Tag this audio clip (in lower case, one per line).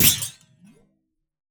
thud